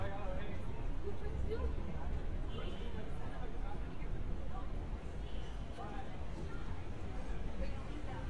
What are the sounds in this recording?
person or small group talking